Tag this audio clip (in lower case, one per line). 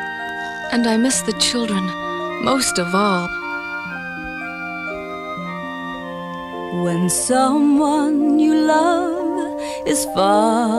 speech
music